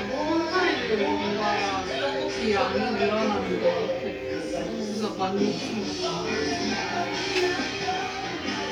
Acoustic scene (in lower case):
restaurant